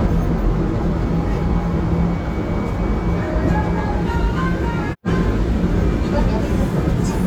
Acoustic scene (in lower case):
subway train